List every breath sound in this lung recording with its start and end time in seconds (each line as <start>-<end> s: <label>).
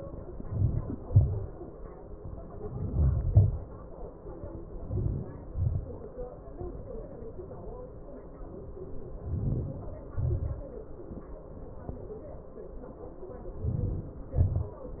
0.00-0.99 s: inhalation
1.00-1.80 s: exhalation
2.43-3.28 s: inhalation
3.42-4.08 s: exhalation
4.67-5.56 s: inhalation
5.65-6.21 s: exhalation
8.97-9.98 s: inhalation
9.98-10.66 s: exhalation
13.32-14.39 s: inhalation
14.42-15.00 s: exhalation